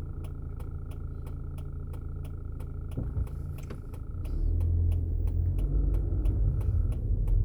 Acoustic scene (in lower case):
car